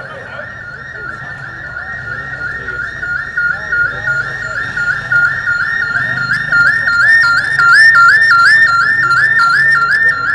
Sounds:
outside, urban or man-made, Speech

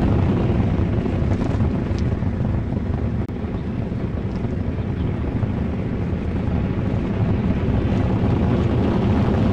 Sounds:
Motorcycle, Vehicle

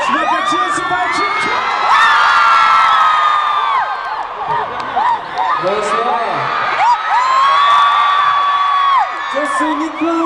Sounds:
Speech

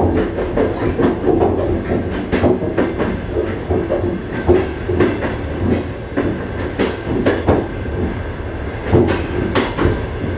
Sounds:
train wheels squealing

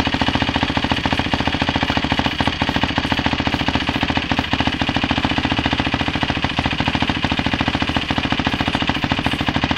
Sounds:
Vehicle, outside, urban or man-made, Motorcycle

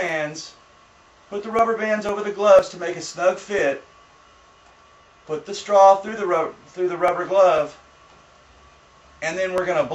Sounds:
inside a small room, Speech

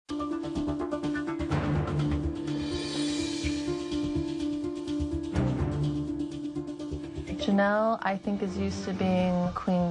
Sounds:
Female speech

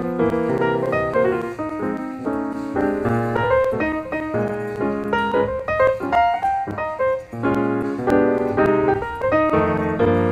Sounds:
Music

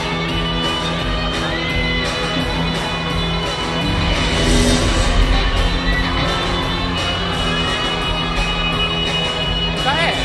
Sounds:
Speech, Music

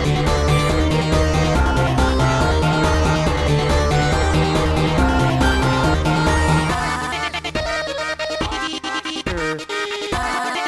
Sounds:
Music, Video game music

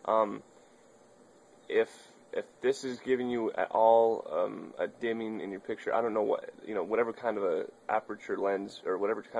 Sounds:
Speech

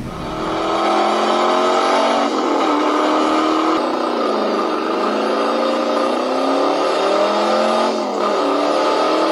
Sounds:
Aircraft

